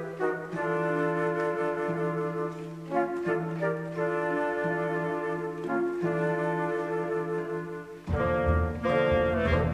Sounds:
music

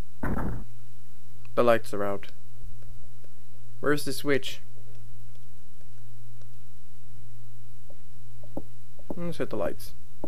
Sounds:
speech

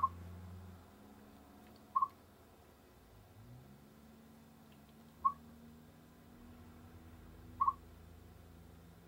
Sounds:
chipmunk chirping

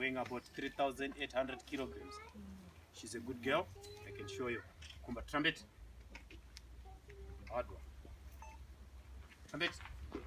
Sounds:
elephant trumpeting

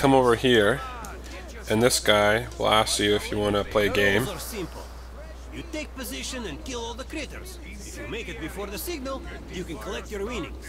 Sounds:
speech

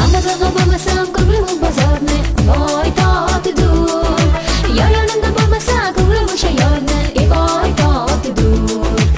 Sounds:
music

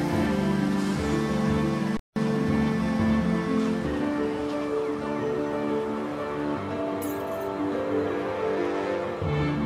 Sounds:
music

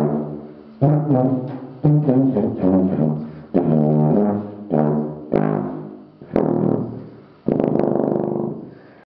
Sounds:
music

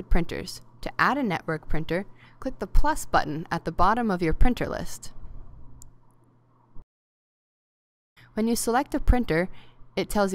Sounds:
speech

